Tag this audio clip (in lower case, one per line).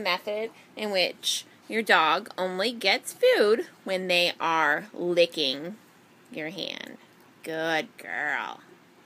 speech